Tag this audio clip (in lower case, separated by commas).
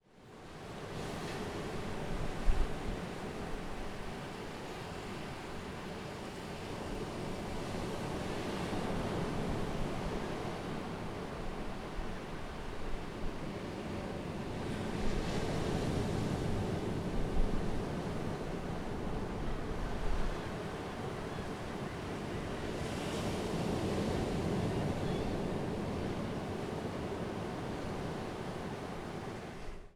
water, ocean